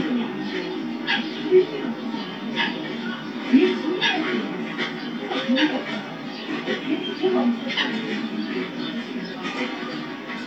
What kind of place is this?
park